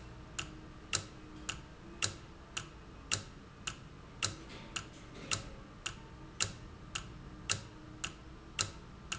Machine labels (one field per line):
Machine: valve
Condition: normal